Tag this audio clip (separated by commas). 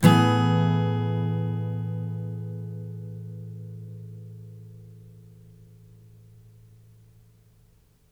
Strum, Plucked string instrument, Music, Acoustic guitar, Guitar, Musical instrument